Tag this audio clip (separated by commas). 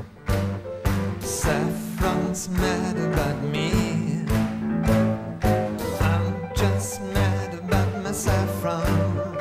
Musical instrument, Music